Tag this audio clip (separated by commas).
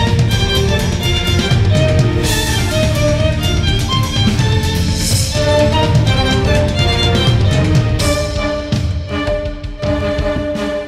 Music, Musical instrument, Violin